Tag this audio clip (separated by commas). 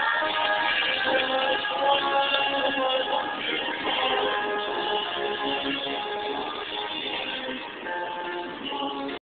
Music